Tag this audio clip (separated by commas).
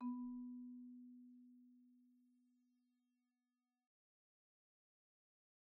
Mallet percussion, Wood, xylophone, Music, Percussion, Musical instrument